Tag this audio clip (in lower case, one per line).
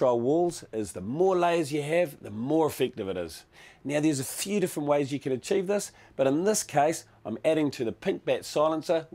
speech